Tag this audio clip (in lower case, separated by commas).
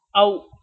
speech, human voice